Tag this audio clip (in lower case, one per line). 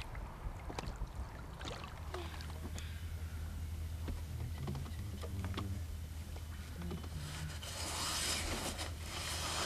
vehicle